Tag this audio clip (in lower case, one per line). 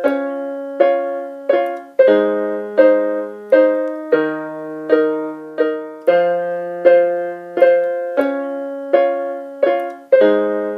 playing synthesizer